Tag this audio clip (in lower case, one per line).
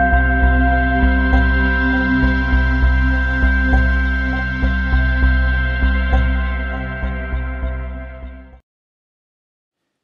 background music